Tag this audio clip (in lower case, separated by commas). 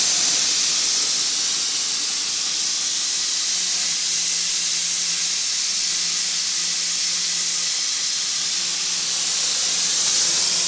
hiss, steam